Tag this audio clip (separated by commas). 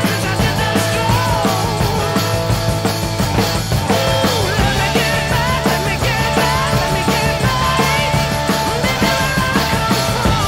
Music